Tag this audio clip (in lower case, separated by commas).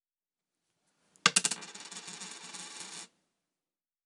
domestic sounds, coin (dropping)